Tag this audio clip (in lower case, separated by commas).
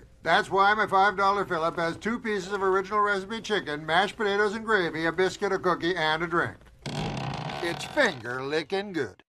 speech